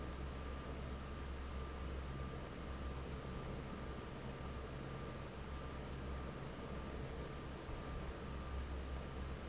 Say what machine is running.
fan